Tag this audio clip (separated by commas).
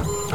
Printer, Mechanisms